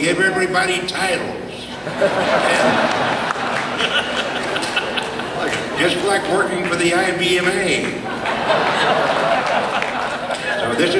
Man speaking to audience with laughter